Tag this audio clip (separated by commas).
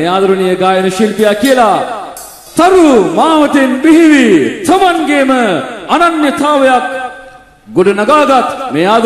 Music, Speech